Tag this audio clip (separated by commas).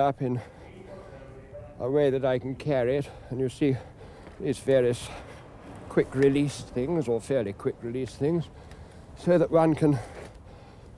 Speech